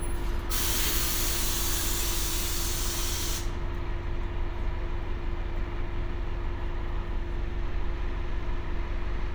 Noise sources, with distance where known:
large-sounding engine, near

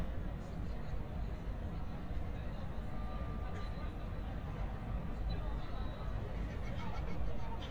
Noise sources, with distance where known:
person or small group talking, far

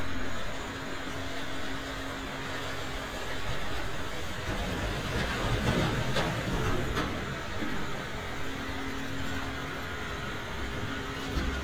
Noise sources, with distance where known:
large-sounding engine, near

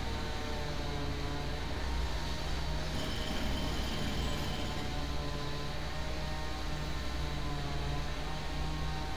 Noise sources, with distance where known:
jackhammer, far
chainsaw, near

